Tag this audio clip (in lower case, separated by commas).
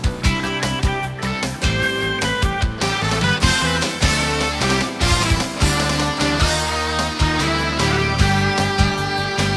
music